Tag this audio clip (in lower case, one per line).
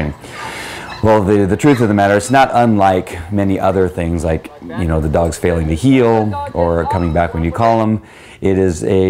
speech